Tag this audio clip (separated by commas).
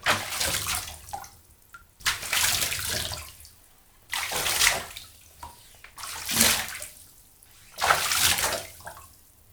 Water, Liquid, Domestic sounds, Bathtub (filling or washing)